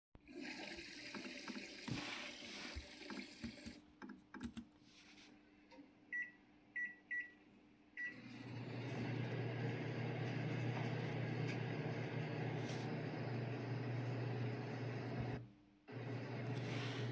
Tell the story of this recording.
The device is placed in the hallway between the kitchen and the bathroom. I start the microwave in the kitchen and then walk into the bathroom to flush the toilet.